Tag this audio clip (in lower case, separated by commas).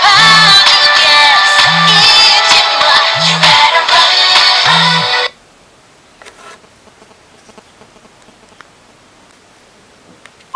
music